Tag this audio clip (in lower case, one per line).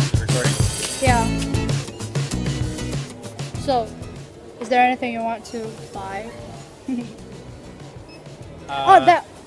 conversation
music